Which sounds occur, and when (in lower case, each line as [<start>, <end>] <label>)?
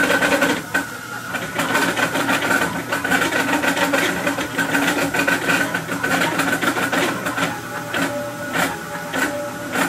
[0.01, 9.85] printer